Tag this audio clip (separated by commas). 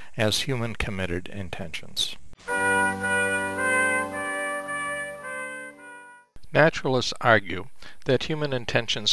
Music, Speech